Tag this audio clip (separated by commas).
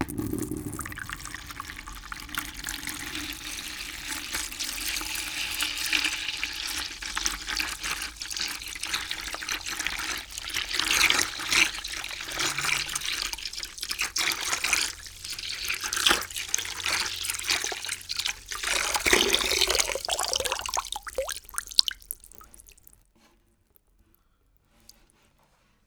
Water